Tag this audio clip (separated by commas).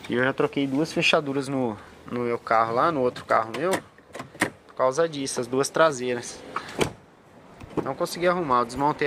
opening or closing car doors